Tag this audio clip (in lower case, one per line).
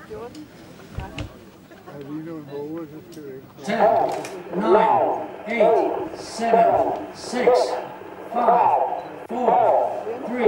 speech